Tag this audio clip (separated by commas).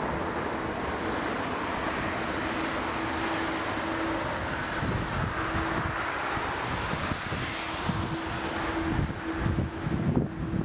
Vehicle, Wind, Aircraft, Fixed-wing aircraft